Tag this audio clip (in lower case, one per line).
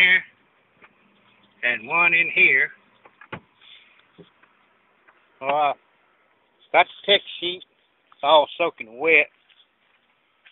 speech